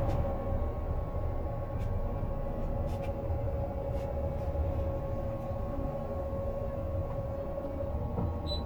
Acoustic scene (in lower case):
bus